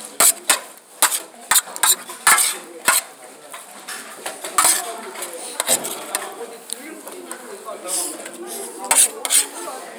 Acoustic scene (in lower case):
kitchen